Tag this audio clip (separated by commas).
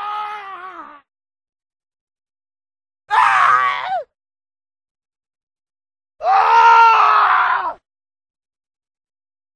Groan